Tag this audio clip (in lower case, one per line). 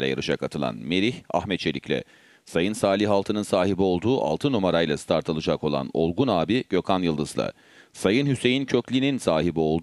speech